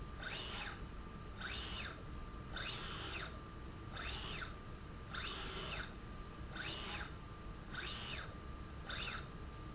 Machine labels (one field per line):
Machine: slide rail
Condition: normal